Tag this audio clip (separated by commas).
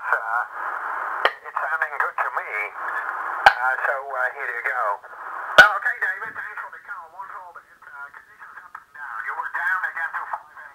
Radio, Speech, inside a small room